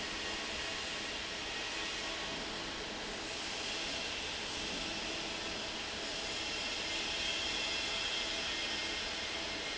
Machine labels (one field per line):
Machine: fan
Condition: normal